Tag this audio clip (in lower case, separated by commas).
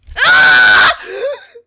human voice, screaming